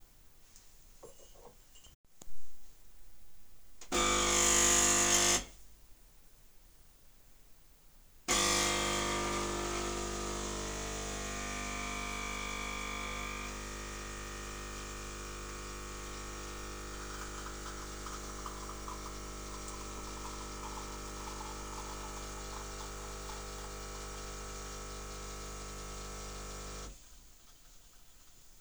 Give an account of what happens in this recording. I placed a cup down and started the coffee machine.